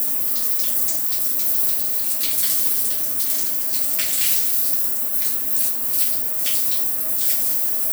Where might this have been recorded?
in a restroom